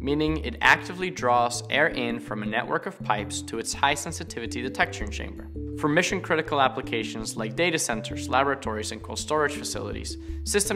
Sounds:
Music, Speech

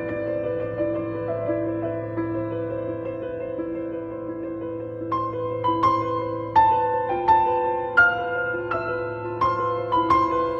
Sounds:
Music

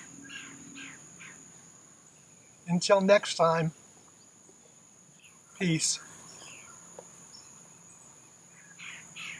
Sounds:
Speech, Insect

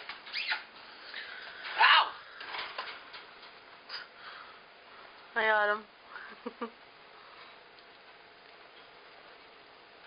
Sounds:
Animal, Speech

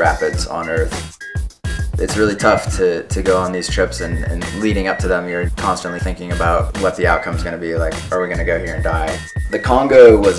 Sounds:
Music, Speech

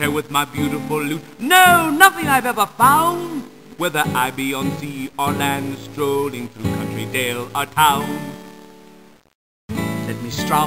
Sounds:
Music, Speech

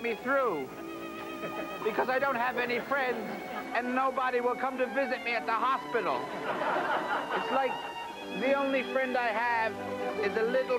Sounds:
Speech, Music

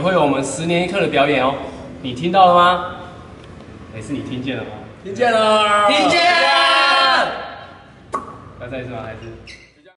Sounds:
Whoop, Speech

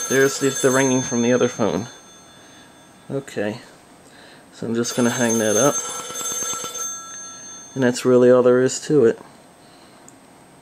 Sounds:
Speech, Telephone

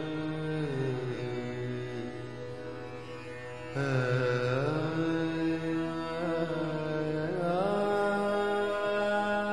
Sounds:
Music

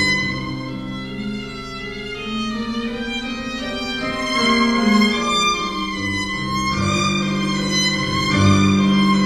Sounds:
Music, fiddle, Musical instrument

